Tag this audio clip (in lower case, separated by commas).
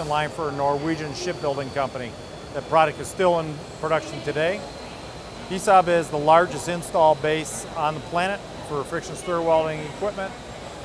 speech